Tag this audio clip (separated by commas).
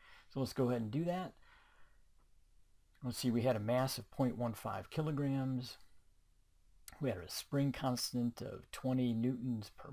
Speech